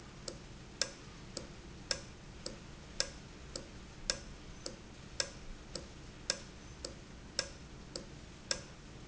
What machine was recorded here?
valve